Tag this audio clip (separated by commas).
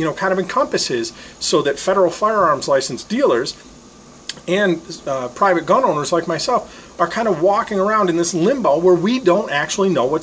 Speech